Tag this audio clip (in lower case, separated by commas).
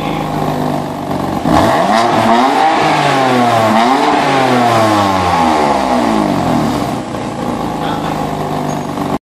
speech